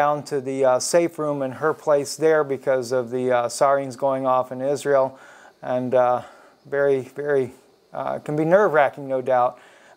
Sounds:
speech

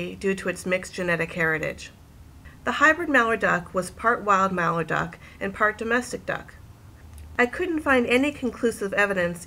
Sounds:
speech

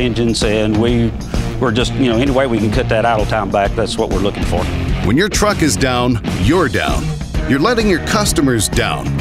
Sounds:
speech, music

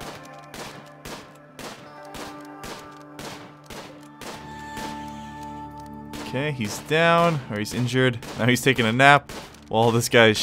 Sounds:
speech, music

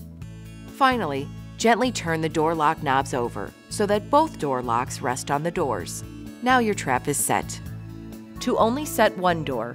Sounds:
music, speech

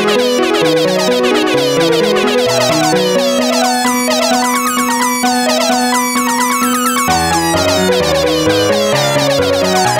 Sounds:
music

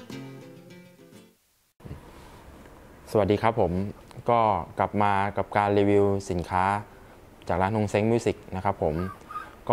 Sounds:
music, speech

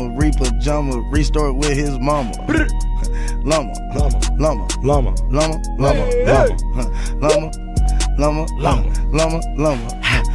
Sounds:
rapping

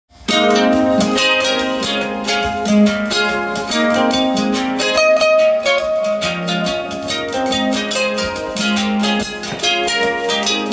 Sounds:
plucked string instrument, music, musical instrument, harp, bowed string instrument

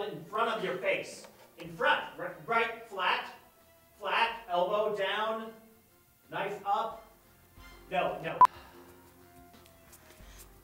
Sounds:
music, speech

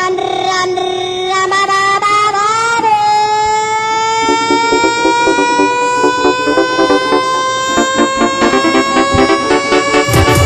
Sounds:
music, inside a small room

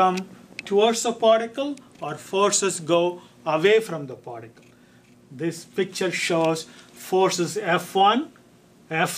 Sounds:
speech

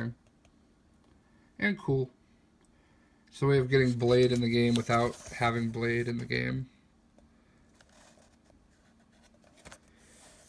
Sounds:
speech

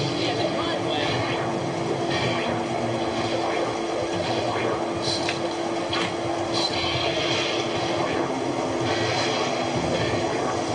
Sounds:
speech

